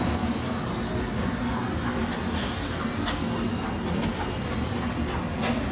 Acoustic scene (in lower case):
subway station